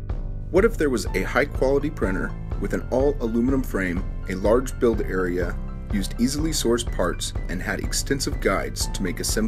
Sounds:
speech, music

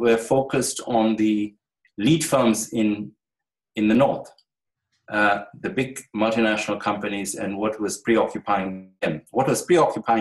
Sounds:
speech, narration

